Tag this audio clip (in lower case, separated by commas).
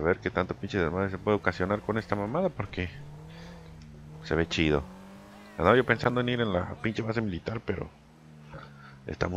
speech